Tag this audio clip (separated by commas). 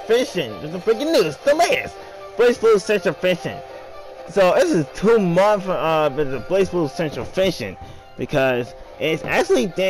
Speech, Music